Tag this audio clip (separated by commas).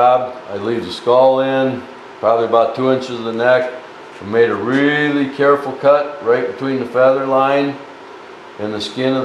Speech